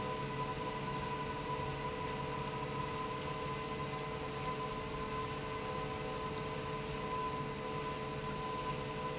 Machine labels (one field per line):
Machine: pump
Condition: normal